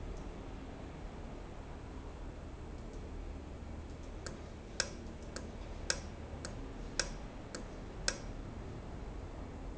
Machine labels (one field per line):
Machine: valve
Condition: normal